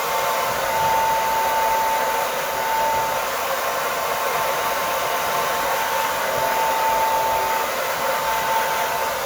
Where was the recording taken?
in a restroom